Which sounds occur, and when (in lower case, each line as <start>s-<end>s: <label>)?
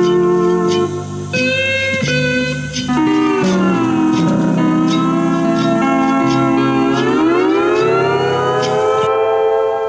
0.0s-9.8s: music
0.0s-9.8s: wind